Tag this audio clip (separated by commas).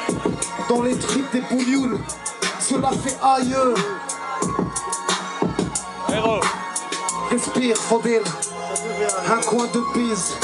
Speech, Music